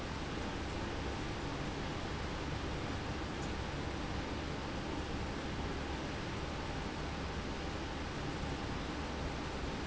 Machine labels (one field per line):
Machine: pump